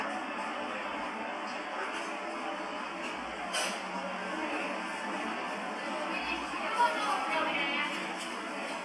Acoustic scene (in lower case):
cafe